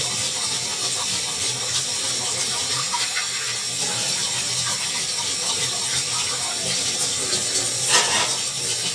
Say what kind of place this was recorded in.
kitchen